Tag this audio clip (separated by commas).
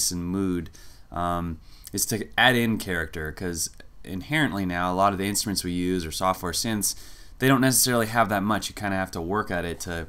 Speech